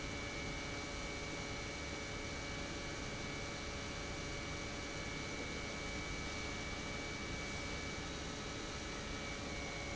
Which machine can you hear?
pump